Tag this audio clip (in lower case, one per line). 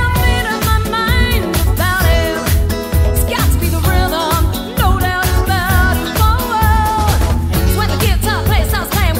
music
music of asia